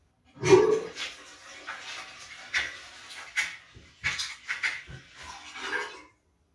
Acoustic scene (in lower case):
restroom